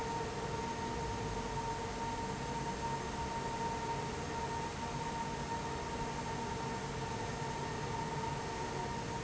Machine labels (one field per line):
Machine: fan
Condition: abnormal